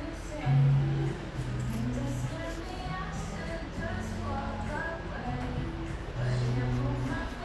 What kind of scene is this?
cafe